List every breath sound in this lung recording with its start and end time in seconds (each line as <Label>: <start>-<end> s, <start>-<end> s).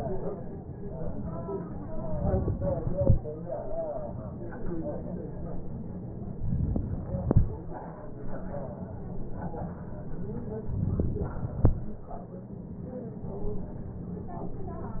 Inhalation: 6.38-7.28 s, 10.74-11.65 s